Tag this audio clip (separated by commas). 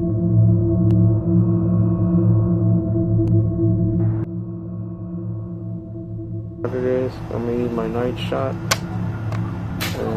Music, Speech